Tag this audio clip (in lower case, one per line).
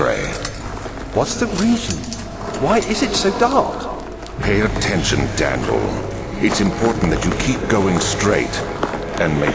speech
inside a large room or hall